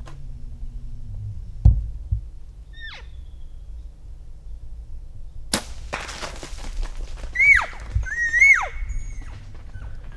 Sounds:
elk bugling

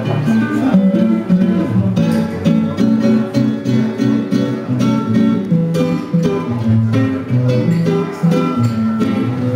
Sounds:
plucked string instrument
jazz
music
guitar
musical instrument

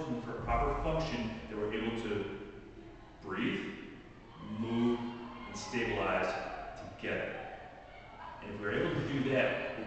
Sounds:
speech

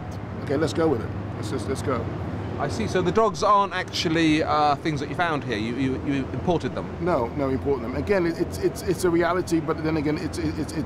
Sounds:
speech
outside, urban or man-made

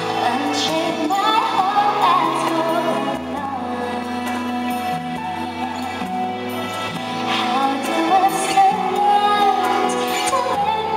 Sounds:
singing
music

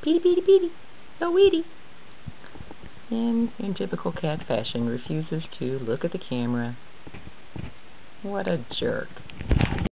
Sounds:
speech

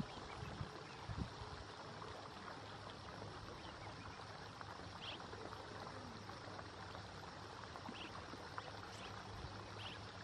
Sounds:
barn swallow calling

